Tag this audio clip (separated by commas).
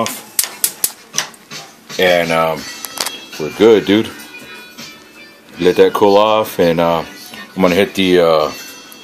Music, Speech, inside a small room